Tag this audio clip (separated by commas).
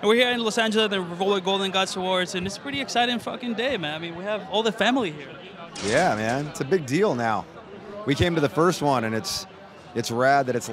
Speech